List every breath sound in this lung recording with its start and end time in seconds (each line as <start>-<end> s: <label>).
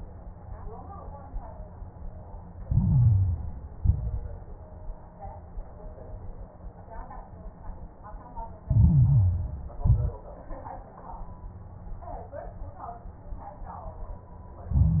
2.60-3.74 s: inhalation
2.60-3.74 s: crackles
3.78-4.49 s: exhalation
3.78-4.49 s: crackles
8.64-9.78 s: inhalation
8.64-9.78 s: crackles
9.82-10.23 s: exhalation
9.82-10.23 s: crackles
14.73-15.00 s: inhalation
14.73-15.00 s: crackles